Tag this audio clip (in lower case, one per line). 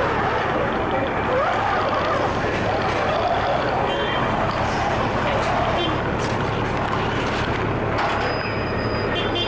vehicle